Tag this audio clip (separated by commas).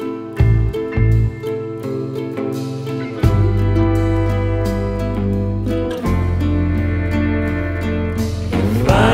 Music